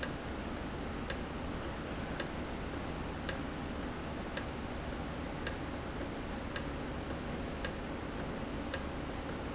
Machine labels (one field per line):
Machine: valve